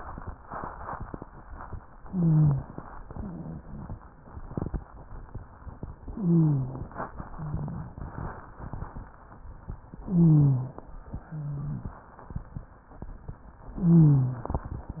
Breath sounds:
2.03-2.68 s: wheeze
2.03-2.79 s: inhalation
3.09-3.85 s: exhalation
3.09-3.85 s: rhonchi
6.09-6.95 s: inhalation
6.09-6.95 s: wheeze
7.19-8.10 s: exhalation
7.34-7.82 s: wheeze
10.04-10.84 s: inhalation
10.04-10.84 s: wheeze
11.20-11.99 s: exhalation
11.20-11.99 s: wheeze
13.79-14.59 s: inhalation
13.79-14.59 s: wheeze

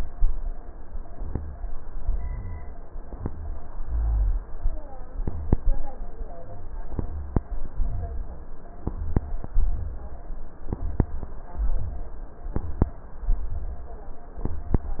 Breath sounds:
1.06-1.60 s: rhonchi
1.97-2.77 s: rhonchi
3.15-3.68 s: rhonchi
3.85-4.38 s: rhonchi

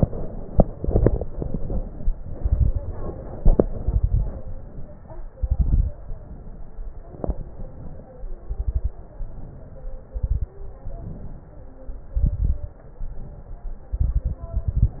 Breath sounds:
3.70-4.46 s: exhalation
3.70-4.46 s: crackles
4.48-5.33 s: inhalation
5.38-6.00 s: exhalation
5.38-6.00 s: crackles
6.01-6.99 s: inhalation
7.09-7.53 s: exhalation
7.09-7.53 s: crackles
7.64-8.39 s: inhalation
8.49-8.97 s: exhalation
8.49-8.97 s: crackles
9.21-10.06 s: inhalation
10.11-10.58 s: exhalation
10.11-10.58 s: crackles
10.66-11.90 s: inhalation
12.16-12.77 s: exhalation
12.16-12.77 s: crackles
12.79-13.82 s: inhalation
13.93-14.48 s: exhalation
13.93-14.48 s: crackles
14.50-15.00 s: inhalation
14.50-15.00 s: crackles

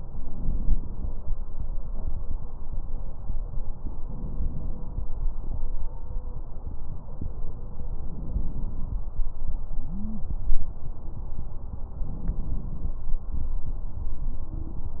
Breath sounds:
0.20-1.22 s: inhalation
4.10-5.11 s: inhalation
8.04-9.06 s: inhalation
9.85-10.30 s: stridor
12.01-13.03 s: inhalation
14.39-14.84 s: stridor

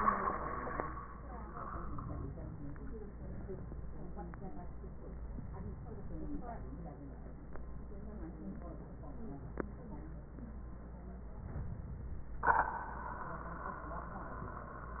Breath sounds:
1.50-3.00 s: inhalation
5.25-6.48 s: inhalation
11.32-12.37 s: inhalation

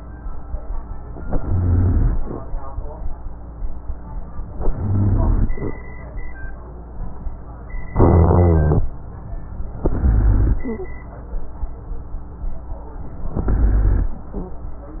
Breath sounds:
1.25-2.18 s: inhalation
1.25-2.18 s: rhonchi
4.57-5.50 s: inhalation
4.57-5.50 s: rhonchi
7.95-8.88 s: inhalation
7.95-8.88 s: rhonchi
9.85-10.66 s: inhalation
9.85-10.66 s: rhonchi
13.36-14.18 s: inhalation
13.36-14.18 s: rhonchi

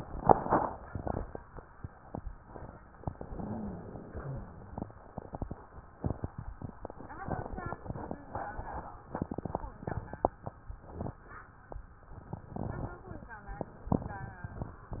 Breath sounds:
3.26-4.18 s: inhalation
3.26-4.18 s: wheeze
4.20-4.99 s: exhalation
4.20-4.99 s: wheeze

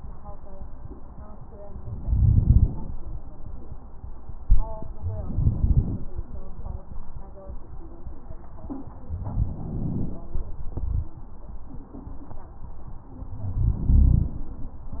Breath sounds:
1.98-2.73 s: inhalation
1.98-2.73 s: crackles
5.18-6.07 s: inhalation
5.18-6.07 s: crackles
9.13-10.25 s: inhalation
9.13-10.25 s: crackles
13.45-14.38 s: inhalation
13.45-14.38 s: crackles

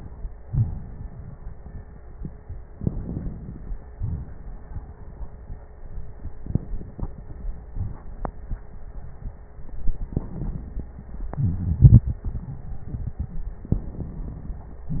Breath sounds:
0.42-2.67 s: exhalation
0.42-2.67 s: crackles
2.72-3.86 s: crackles
2.72-3.90 s: inhalation
3.87-6.28 s: exhalation
3.87-6.28 s: crackles
9.61-11.10 s: inhalation
9.61-11.10 s: crackles
11.13-12.59 s: wheeze
11.13-13.65 s: exhalation
13.66-15.00 s: inhalation
13.66-15.00 s: crackles

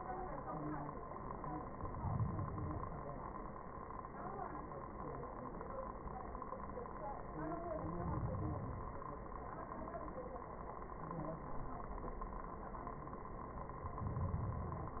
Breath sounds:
1.57-3.07 s: inhalation
7.66-9.16 s: inhalation
13.82-15.00 s: inhalation

